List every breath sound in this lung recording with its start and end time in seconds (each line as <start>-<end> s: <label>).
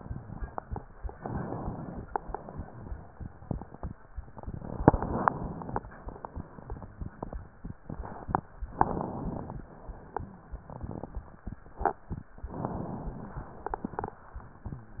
1.15-2.05 s: inhalation
2.07-3.11 s: exhalation
4.56-5.80 s: inhalation
5.78-6.95 s: exhalation
8.69-9.54 s: inhalation
9.60-10.32 s: exhalation
12.51-13.51 s: inhalation
13.51-14.23 s: exhalation